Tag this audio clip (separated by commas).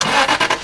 Engine, Vehicle